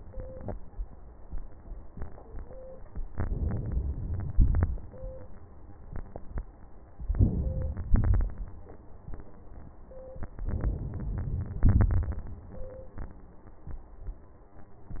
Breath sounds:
Inhalation: 3.08-4.35 s, 7.00-7.90 s, 10.23-11.58 s
Exhalation: 4.36-5.26 s, 7.93-8.83 s

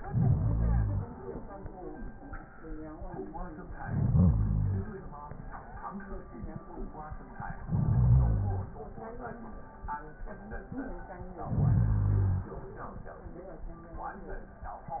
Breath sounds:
Inhalation: 0.00-1.12 s, 3.76-5.04 s, 7.50-8.77 s, 11.33-12.60 s

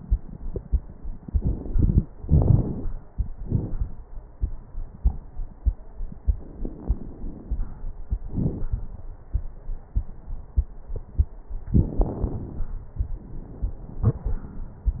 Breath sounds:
Inhalation: 2.18-2.95 s, 6.29-7.97 s
Exhalation: 3.43-4.03 s, 8.28-8.71 s
Crackles: 2.18-2.95 s, 3.43-4.03 s, 6.29-7.97 s, 8.28-8.71 s

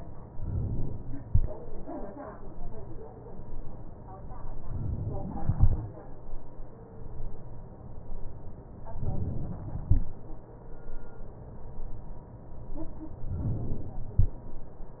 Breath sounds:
Inhalation: 4.71-5.44 s, 8.89-9.86 s, 13.30-14.27 s
Exhalation: 5.44-6.42 s

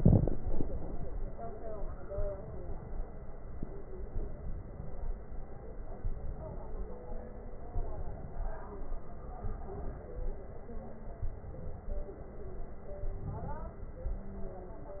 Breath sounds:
Inhalation: 0.23-1.00 s, 2.15-2.85 s, 4.10-4.88 s, 6.00-6.78 s, 7.75-8.53 s, 9.44-10.22 s, 11.25-12.03 s, 13.04-13.81 s

